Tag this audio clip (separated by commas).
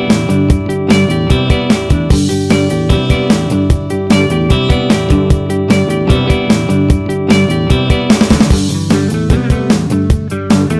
Music